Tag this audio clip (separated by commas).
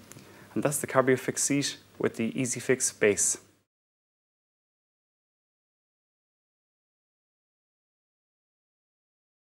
Speech